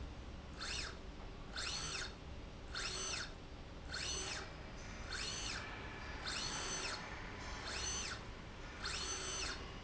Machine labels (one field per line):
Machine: slide rail